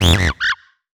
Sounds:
animal

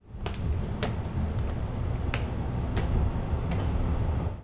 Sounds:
walk

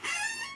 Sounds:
squeak

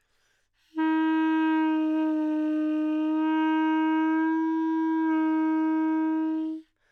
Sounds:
musical instrument, wind instrument, music

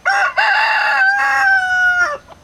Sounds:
livestock, fowl, chicken, animal

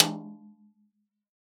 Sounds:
music, drum, snare drum, musical instrument, percussion

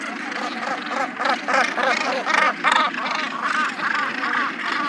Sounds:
bird, animal, wild animals, gull

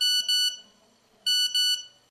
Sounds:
alarm, telephone

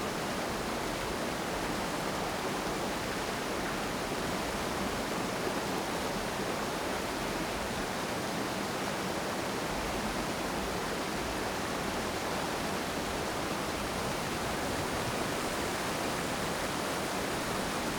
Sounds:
water

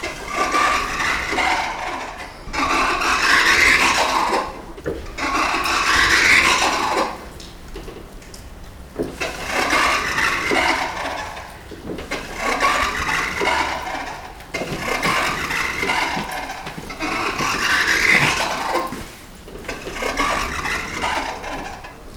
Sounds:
door, sliding door, domestic sounds

